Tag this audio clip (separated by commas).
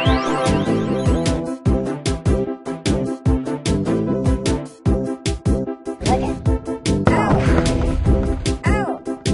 Music